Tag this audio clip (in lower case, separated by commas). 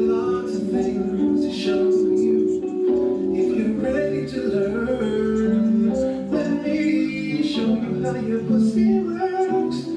music